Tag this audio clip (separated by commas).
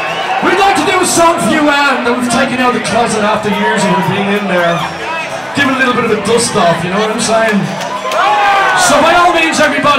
Music, Speech